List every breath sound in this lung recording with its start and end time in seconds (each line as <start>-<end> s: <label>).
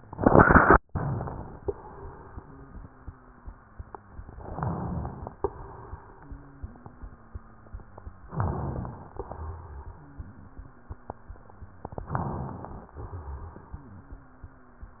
2.25-4.32 s: wheeze
4.40-5.34 s: inhalation
4.40-5.34 s: crackles
5.42-8.29 s: exhalation
6.18-8.29 s: wheeze
8.33-9.20 s: crackles
8.33-9.22 s: inhalation
9.28-11.95 s: exhalation
9.91-11.91 s: wheeze
11.95-12.93 s: crackles
11.97-12.95 s: inhalation
12.95-15.00 s: exhalation
13.69-15.00 s: wheeze